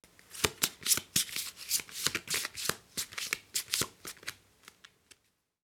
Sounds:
domestic sounds

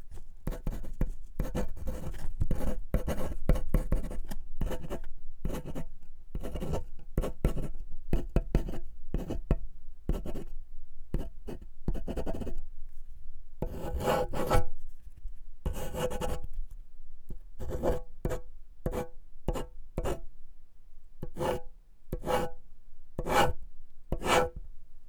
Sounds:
domestic sounds
writing

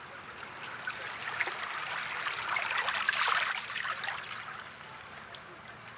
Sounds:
water
ocean
waves

